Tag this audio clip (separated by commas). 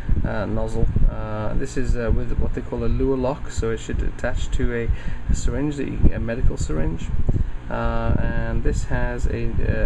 Speech